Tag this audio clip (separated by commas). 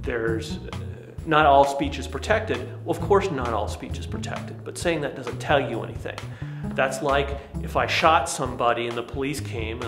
Music, Speech, man speaking, monologue